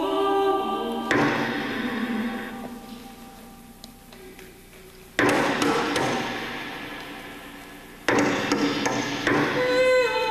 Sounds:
music

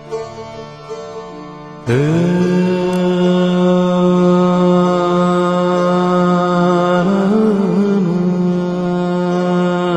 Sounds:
music
sitar

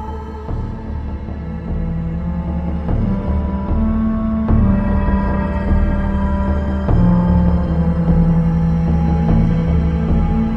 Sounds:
music

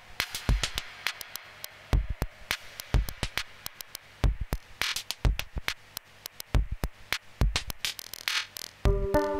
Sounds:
music
electronica

